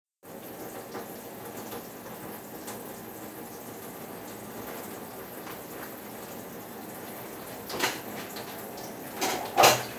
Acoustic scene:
kitchen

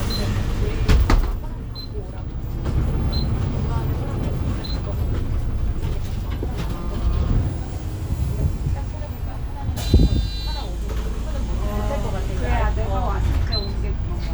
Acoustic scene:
bus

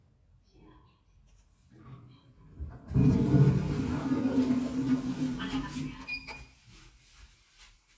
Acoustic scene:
elevator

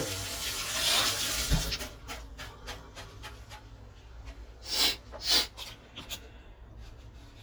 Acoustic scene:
kitchen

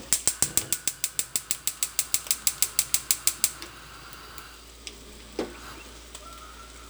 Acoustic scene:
kitchen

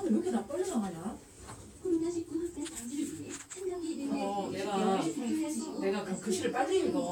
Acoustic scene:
elevator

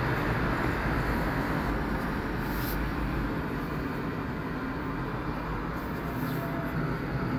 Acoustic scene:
street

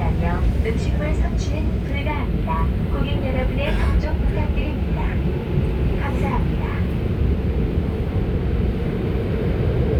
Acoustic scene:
subway train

